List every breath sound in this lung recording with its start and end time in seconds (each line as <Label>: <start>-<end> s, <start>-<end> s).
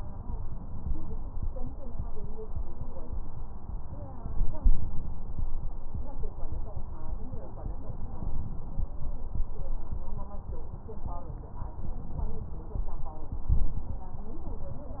Inhalation: 13.31-14.05 s